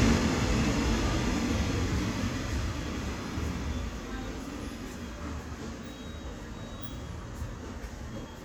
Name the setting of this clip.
subway station